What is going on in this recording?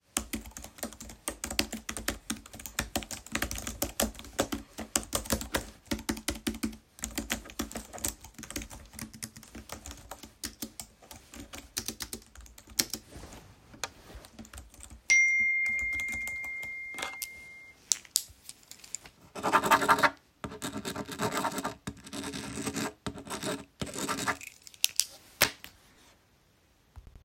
The phone is placed on a table in the bedroom while I sit at a desk. I type on a keyboard and during typing a phone notification sound occurs. Additional sounds from pen clicking and writing on paper are audible.